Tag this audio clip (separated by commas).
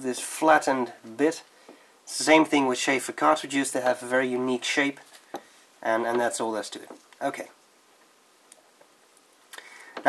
Speech